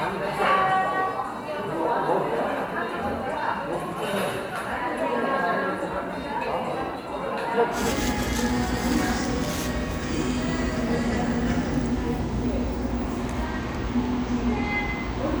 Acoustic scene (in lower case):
cafe